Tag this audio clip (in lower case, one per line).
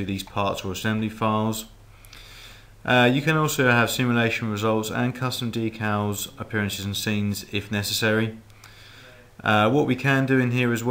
speech